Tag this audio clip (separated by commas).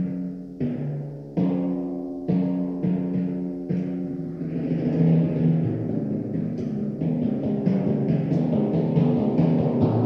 playing timpani